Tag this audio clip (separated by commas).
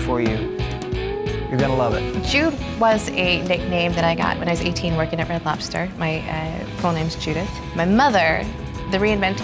Music, Speech